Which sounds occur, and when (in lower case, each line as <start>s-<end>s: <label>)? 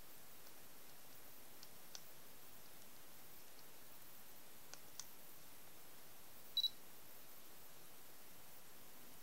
0.0s-9.2s: background noise
0.4s-0.4s: clicking
0.8s-0.9s: clicking
1.0s-1.1s: clicking
1.5s-1.6s: clicking
1.9s-2.0s: clicking
2.6s-2.7s: clicking
2.7s-2.8s: clicking
3.3s-3.4s: clicking
3.5s-3.6s: clicking
4.7s-4.7s: clicking
4.9s-5.0s: clicking
6.5s-6.8s: beep